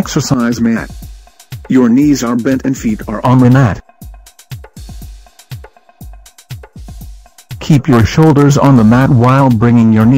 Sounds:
speech synthesizer

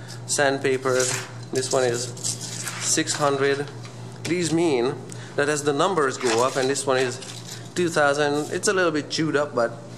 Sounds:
speech

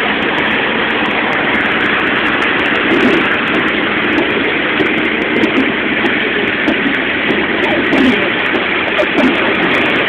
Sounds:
vehicle

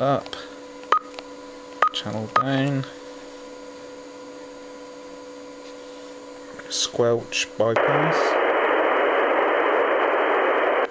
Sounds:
radio
speech

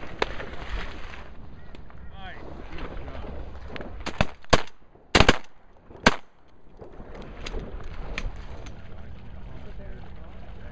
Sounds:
speech

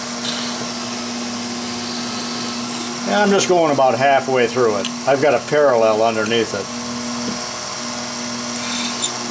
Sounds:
power tool
drill
tools

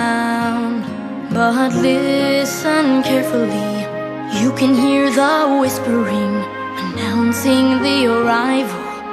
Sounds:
music

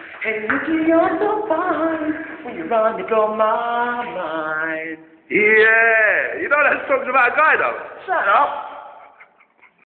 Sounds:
male singing
speech

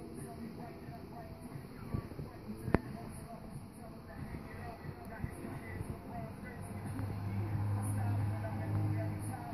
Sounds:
music

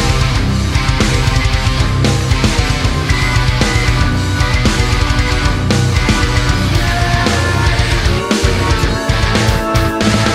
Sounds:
music

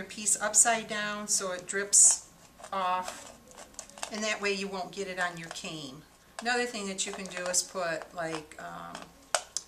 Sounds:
speech

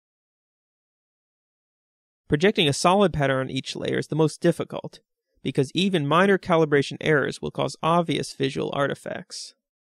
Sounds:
speech

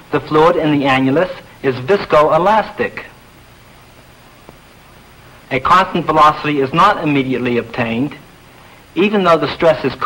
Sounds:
speech

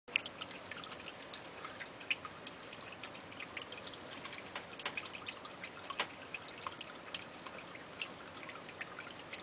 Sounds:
trickle

